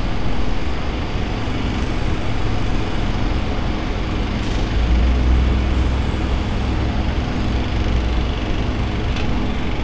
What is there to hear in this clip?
engine of unclear size